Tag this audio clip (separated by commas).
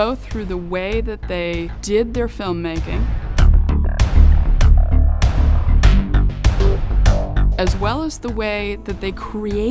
Music, Speech